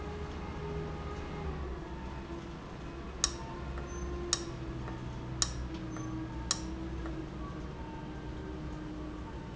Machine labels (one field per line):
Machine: valve